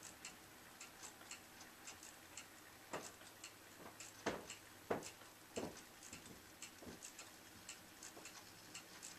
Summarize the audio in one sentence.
Ticking of clocks